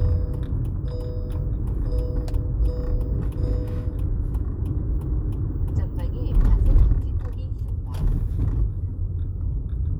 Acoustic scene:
car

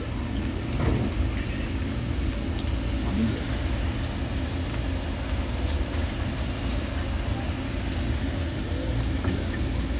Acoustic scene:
crowded indoor space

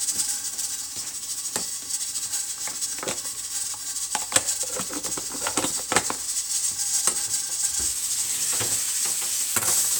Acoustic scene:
kitchen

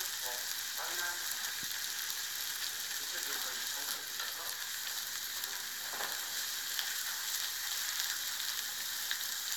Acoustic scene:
restaurant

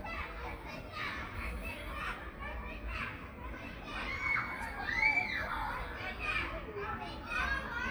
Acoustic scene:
park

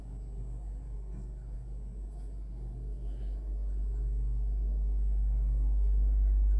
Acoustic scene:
elevator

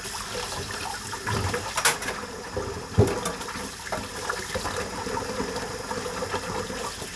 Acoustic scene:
kitchen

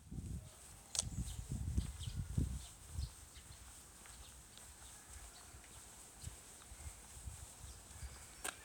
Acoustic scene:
park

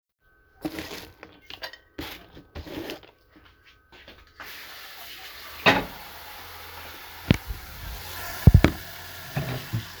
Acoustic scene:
kitchen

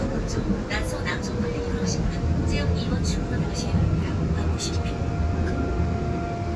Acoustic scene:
subway train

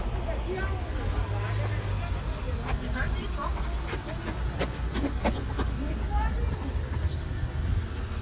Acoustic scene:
street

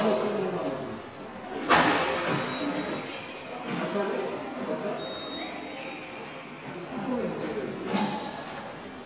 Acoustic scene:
subway station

